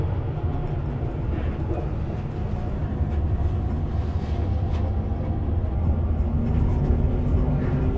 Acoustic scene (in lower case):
bus